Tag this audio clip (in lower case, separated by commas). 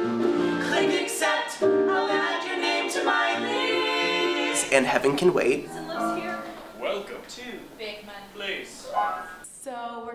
music, speech